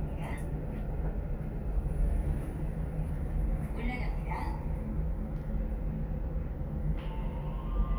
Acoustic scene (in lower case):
elevator